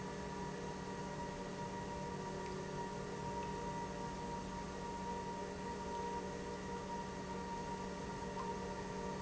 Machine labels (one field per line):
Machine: pump